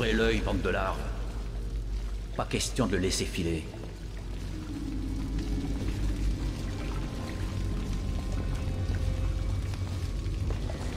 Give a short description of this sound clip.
While raining, a non English man speaks, and then dreadful music plays